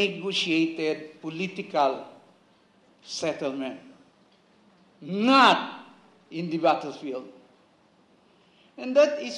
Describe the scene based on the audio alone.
A man with an accent is giving a speech